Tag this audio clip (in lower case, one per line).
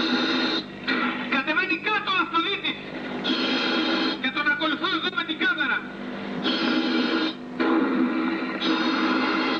speech